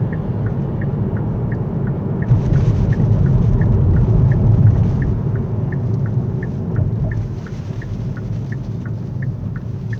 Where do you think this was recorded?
in a car